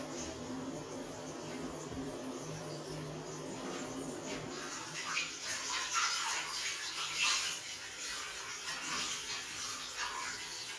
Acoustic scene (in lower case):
restroom